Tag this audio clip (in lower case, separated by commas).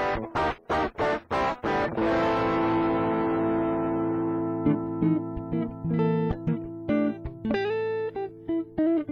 bass guitar, music